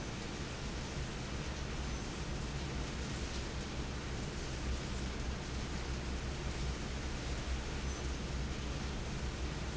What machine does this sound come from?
fan